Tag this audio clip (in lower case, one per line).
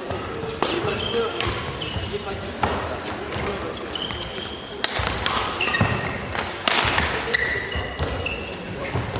playing badminton